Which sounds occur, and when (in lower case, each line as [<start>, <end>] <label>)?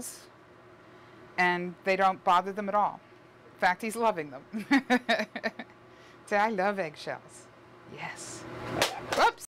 [0.00, 0.25] human voice
[0.00, 9.45] mechanisms
[1.33, 1.68] woman speaking
[1.82, 2.12] woman speaking
[2.26, 2.91] woman speaking
[3.59, 4.37] woman speaking
[4.49, 5.66] laughter
[5.89, 6.15] breathing
[6.29, 7.44] woman speaking
[7.88, 8.38] woman speaking
[8.75, 8.84] tick
[8.81, 9.03] cat
[9.06, 9.15] tick
[9.08, 9.40] woman speaking